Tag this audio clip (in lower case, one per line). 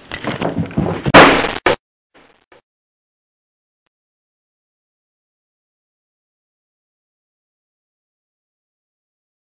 pop
explosion